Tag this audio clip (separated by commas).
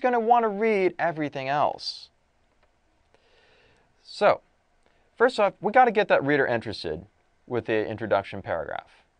Speech